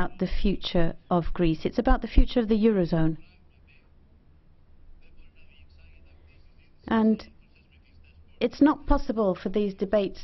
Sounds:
female speech, monologue, speech

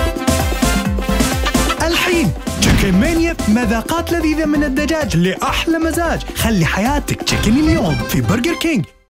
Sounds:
speech, music

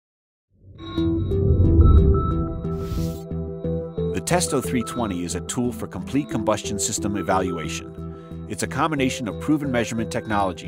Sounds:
speech, music

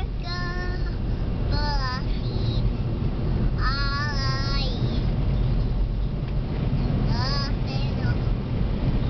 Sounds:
female singing, child singing

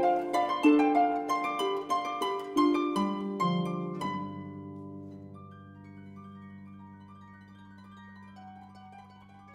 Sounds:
playing harp, harp, pizzicato

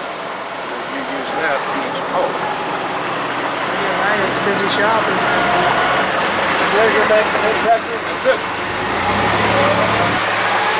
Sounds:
vehicle, man speaking, speech

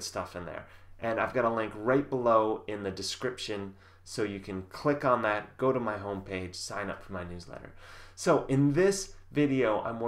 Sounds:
speech

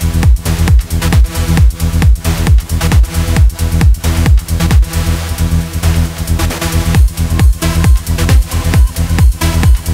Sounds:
electronic music, techno, music, trance music

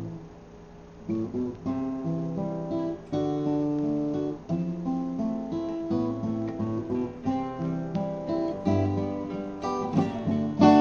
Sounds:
acoustic guitar, plucked string instrument, music, strum, musical instrument, guitar

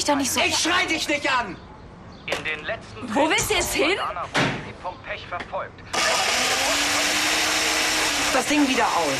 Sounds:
inside a small room, speech

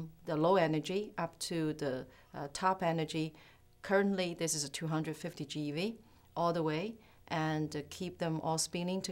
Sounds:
speech

